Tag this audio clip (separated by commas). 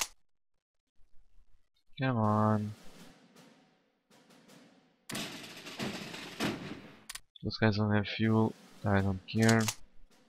Machine gun, Speech